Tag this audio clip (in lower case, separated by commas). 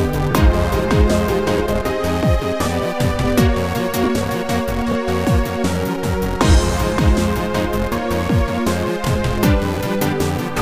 background music, music